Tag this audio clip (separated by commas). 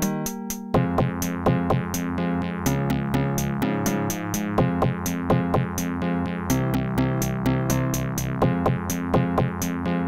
Video game music, Music